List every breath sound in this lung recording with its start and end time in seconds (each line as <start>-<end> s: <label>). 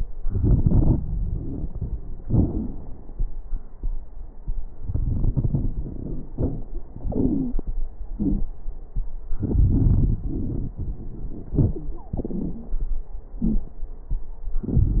0.20-2.00 s: inhalation
0.20-2.00 s: crackles
2.21-3.25 s: exhalation
2.21-3.25 s: crackles
4.84-6.84 s: inhalation
4.84-6.84 s: crackles
6.96-7.69 s: exhalation
7.05-7.69 s: wheeze
8.17-8.49 s: wheeze
9.36-10.72 s: inhalation
9.36-10.72 s: crackles
11.51-12.10 s: wheeze
11.51-12.89 s: exhalation
13.41-13.73 s: wheeze
14.65-14.97 s: inhalation
14.65-14.97 s: crackles